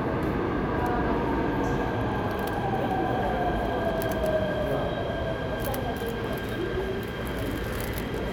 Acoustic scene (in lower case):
subway station